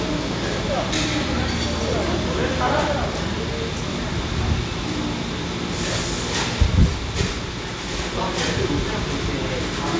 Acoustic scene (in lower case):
cafe